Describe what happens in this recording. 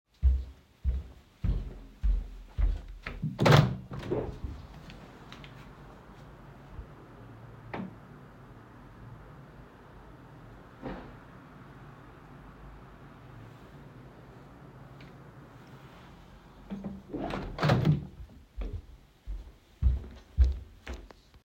Walked over to the window, opened it, stood and waited for a few seconds, then closed it and walked away.